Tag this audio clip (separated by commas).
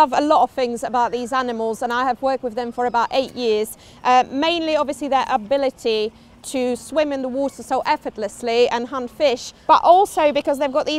penguins braying